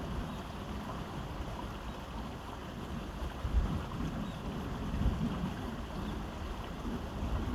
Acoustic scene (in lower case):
park